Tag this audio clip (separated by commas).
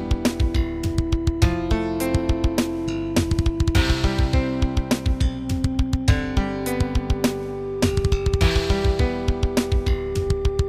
Music, Musical instrument